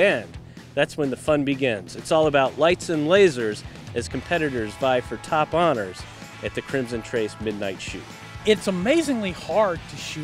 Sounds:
music
speech

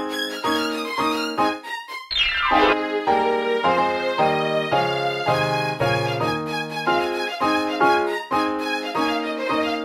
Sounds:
music
keyboard (musical)
piano
playing piano
musical instrument

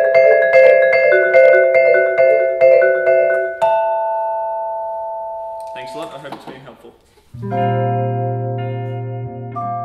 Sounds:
playing vibraphone

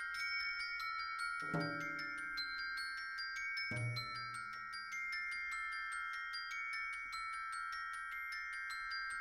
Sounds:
music
xylophone
percussion

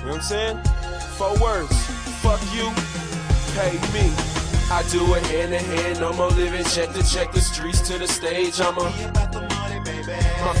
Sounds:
music
speech

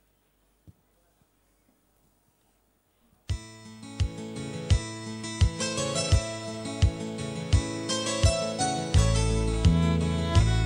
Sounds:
fiddle
musical instrument
music
bluegrass
country

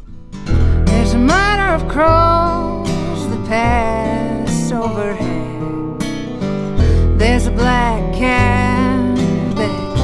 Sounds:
music

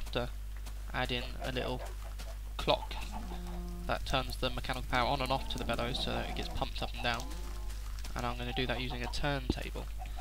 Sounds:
speech

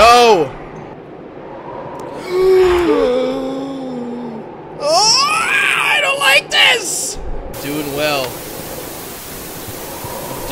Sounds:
speech
pink noise
inside a large room or hall

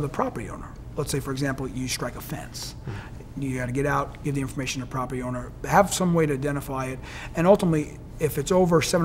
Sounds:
speech

